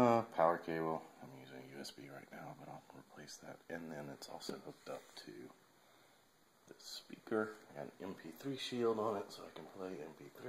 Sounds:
speech

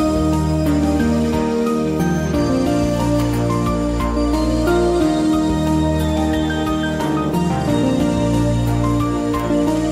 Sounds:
music

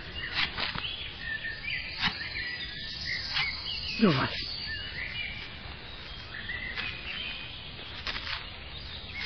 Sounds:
footsteps

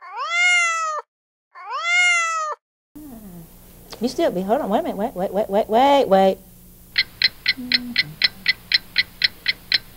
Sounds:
speech

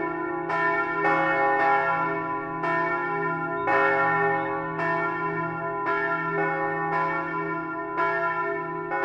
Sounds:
church bell ringing

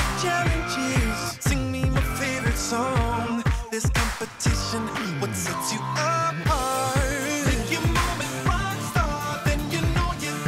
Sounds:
punk rock
soul music
progressive rock
rock and roll
exciting music
music

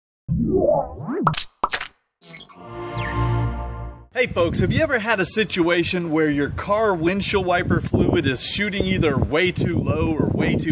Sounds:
speech

